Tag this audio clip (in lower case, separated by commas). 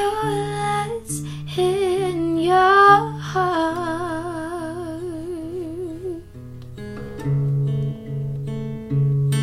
singing